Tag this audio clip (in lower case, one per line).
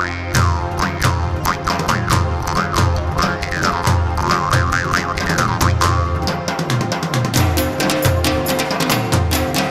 music